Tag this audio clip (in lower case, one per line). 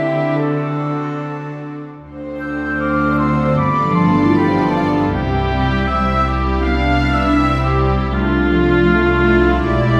music